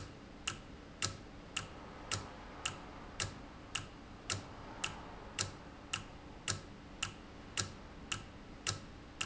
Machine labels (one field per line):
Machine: valve